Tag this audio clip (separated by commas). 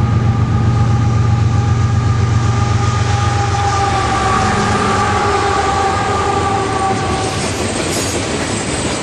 Railroad car, Train, Clickety-clack, Rail transport